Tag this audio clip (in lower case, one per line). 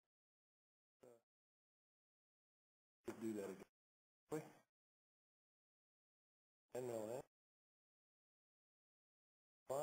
speech